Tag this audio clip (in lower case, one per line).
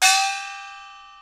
percussion
gong
musical instrument
music